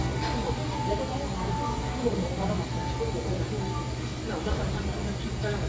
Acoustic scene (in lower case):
cafe